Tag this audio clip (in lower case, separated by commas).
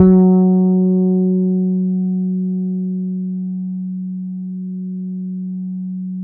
bass guitar, musical instrument, guitar, music, plucked string instrument